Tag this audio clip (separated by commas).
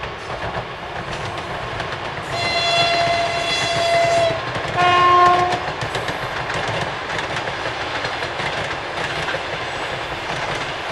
train whistling